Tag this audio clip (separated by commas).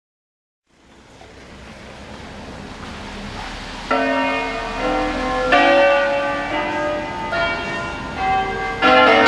Bell, church bell ringing, Church bell